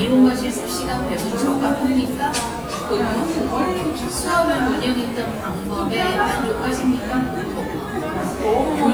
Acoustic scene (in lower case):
cafe